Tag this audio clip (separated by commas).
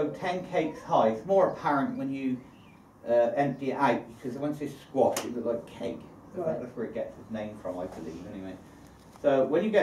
Speech